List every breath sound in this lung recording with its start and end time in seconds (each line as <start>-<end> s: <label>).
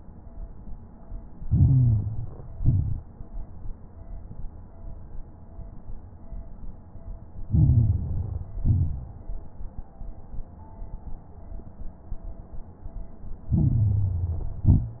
1.50-2.56 s: inhalation
1.50-2.56 s: crackles
2.58-3.24 s: exhalation
2.58-3.24 s: crackles
7.49-8.55 s: inhalation
7.49-8.55 s: crackles
8.64-9.30 s: exhalation
8.64-9.30 s: crackles
13.55-14.65 s: inhalation
13.55-14.65 s: crackles
14.71-15.00 s: exhalation
14.71-15.00 s: crackles